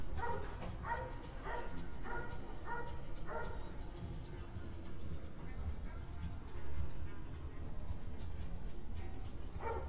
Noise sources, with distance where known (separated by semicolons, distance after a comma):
music from an unclear source; unidentified human voice; dog barking or whining, near